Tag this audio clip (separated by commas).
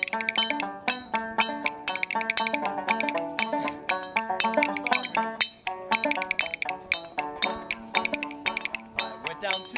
Speech, Music